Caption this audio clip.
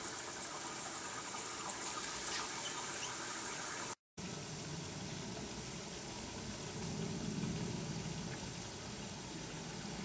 A high pitched hiss followed by a lower pitched hiss